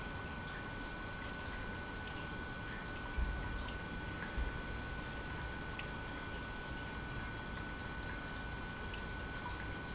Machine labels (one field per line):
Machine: pump